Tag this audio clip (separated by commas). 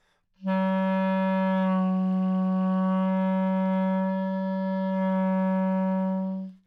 Musical instrument, Wind instrument, Music